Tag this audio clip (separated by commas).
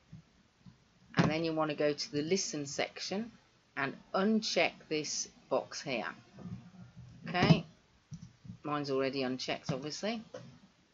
Speech